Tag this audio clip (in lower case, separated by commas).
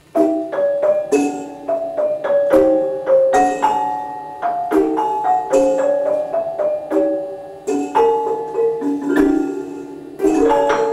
music